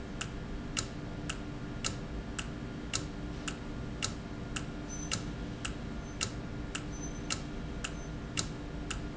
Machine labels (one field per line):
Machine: valve